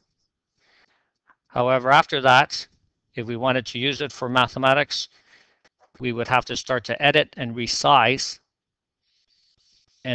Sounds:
Speech

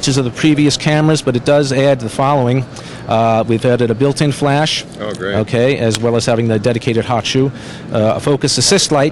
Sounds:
Speech

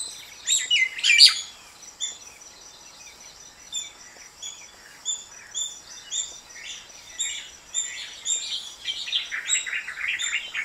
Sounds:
Bird, tweeting, Chirp, bird song

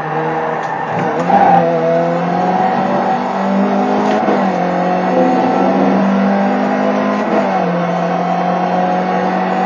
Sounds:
Vehicle, Race car, Car

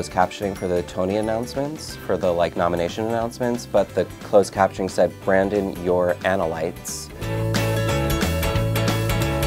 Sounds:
Speech, Music

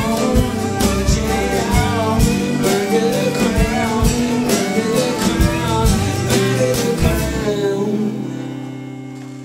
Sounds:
fiddle, Music, Guitar, Musical instrument, Percussion, Drum, Plucked string instrument, Bass guitar

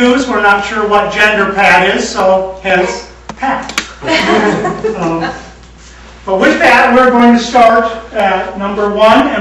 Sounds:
Speech

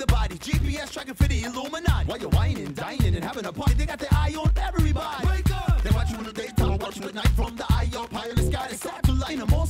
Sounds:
Dance music, Pop music, Music, Independent music

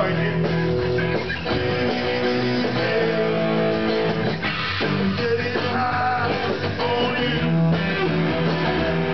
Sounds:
Music, Disco

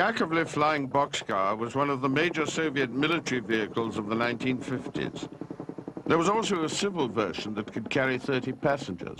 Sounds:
Speech

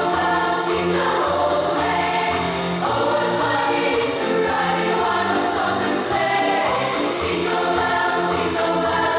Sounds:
Jingle (music), Choir, Music

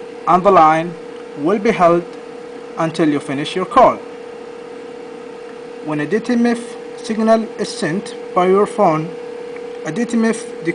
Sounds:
Speech

